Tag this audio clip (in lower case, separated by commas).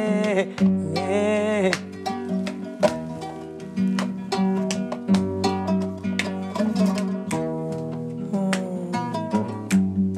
music